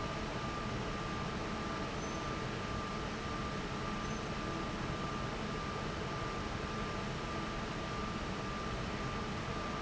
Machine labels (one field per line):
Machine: fan